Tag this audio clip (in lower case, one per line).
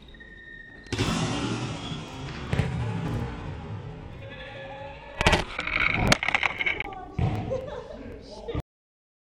speech